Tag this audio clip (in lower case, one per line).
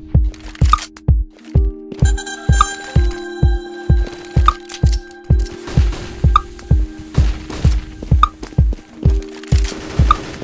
music